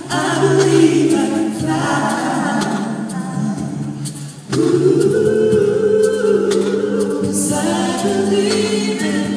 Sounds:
singing, vocal music, music

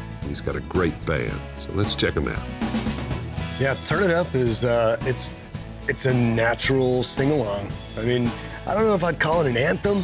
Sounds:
music, speech

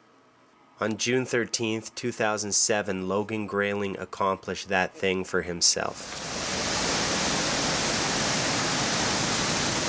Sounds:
speech

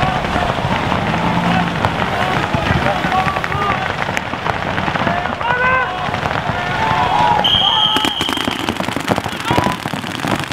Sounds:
firecracker, music, speech

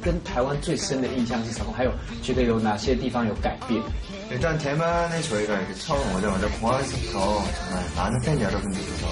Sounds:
speech, music

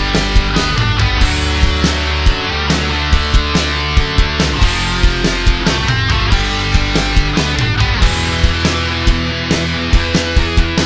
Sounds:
music

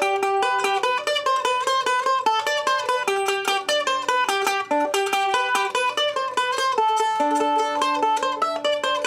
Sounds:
playing mandolin

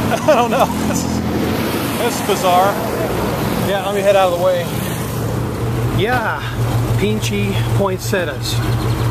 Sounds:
vehicle, outside, urban or man-made, car, speech

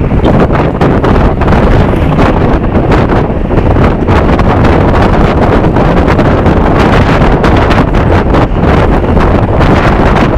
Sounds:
vehicle, bus

